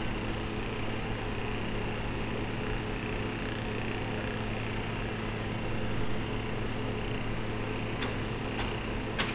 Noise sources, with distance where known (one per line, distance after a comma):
unidentified impact machinery, far